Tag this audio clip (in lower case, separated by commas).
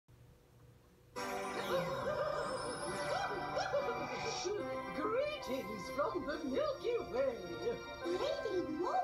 music, speech